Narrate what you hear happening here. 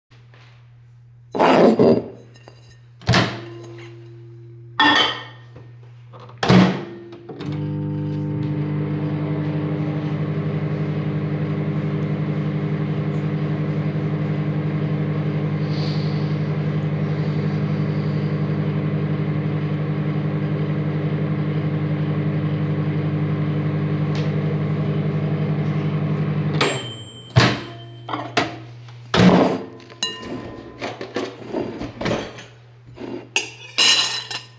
I take my plate, I open the microwave, I put the plate inside, I close the microwave and start the microwave. The microwave is done working, I open the microwave again, take the plate out, open a drawer, take a spoon, close the drawer, put the spoon in my plate